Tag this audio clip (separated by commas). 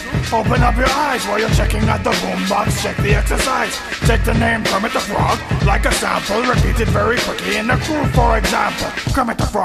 Music